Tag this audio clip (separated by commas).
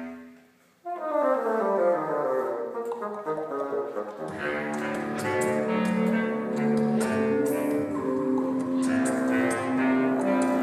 playing bassoon